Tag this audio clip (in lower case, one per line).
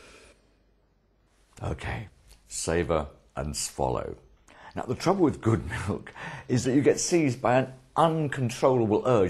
inside a small room
speech